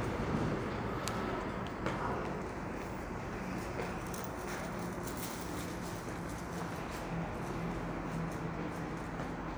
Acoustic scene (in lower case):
subway station